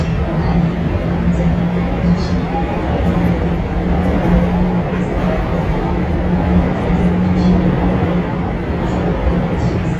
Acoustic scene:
subway train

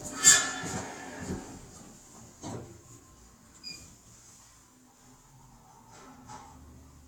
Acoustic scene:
elevator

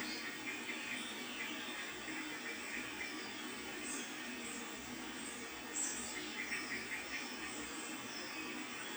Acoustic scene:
park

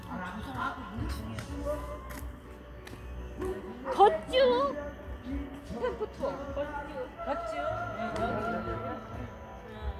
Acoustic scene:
park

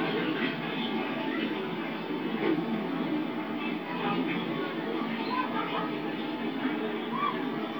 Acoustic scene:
park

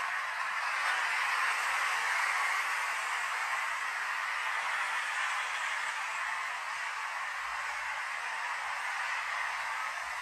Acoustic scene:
street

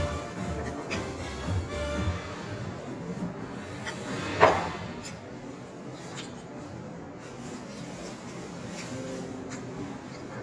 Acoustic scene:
restaurant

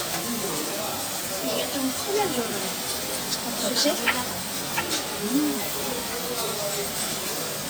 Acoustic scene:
restaurant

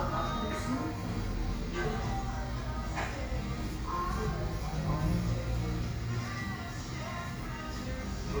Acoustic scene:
cafe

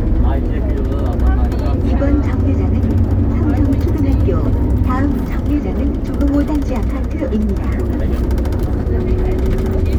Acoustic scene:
bus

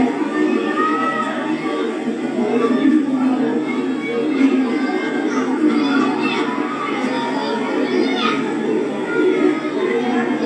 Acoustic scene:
park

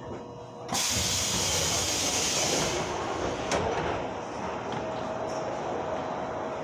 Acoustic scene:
subway train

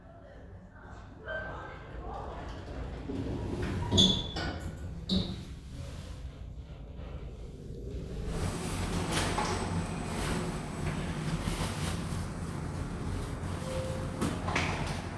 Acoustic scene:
elevator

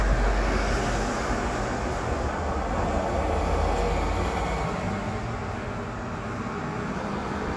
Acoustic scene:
street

